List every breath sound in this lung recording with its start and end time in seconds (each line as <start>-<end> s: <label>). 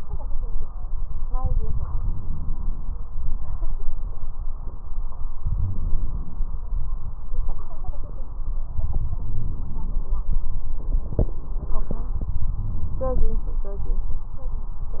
1.93-3.13 s: inhalation
5.36-6.57 s: inhalation
9.20-10.27 s: inhalation
12.56-13.64 s: inhalation
12.56-13.64 s: crackles